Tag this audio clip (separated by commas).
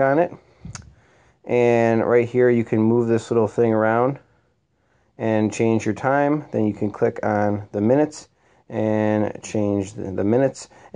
Speech